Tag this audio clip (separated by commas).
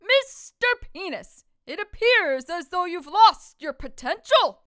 Human voice, Speech, Female speech, Shout, Yell